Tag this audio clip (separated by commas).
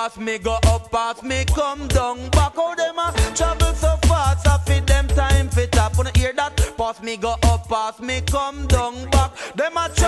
Music